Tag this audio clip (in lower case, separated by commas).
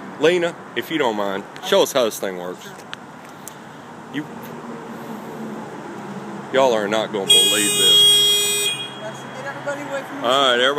vehicle, outside, urban or man-made, speech